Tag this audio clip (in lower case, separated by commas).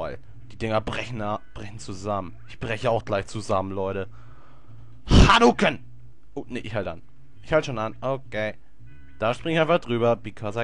speech